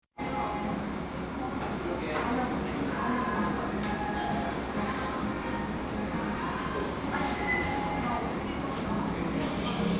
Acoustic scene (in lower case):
cafe